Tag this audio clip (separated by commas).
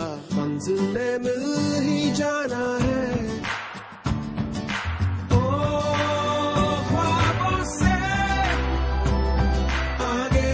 Music